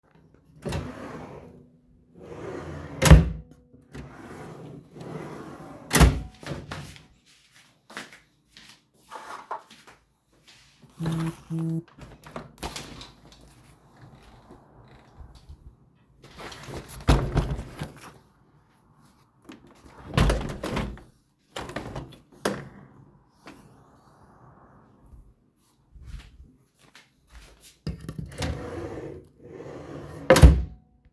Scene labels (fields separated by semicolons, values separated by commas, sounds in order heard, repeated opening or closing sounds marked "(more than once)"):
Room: living room; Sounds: wardrobe or drawer (more than once), footsteps, phone ringing, window (more than once)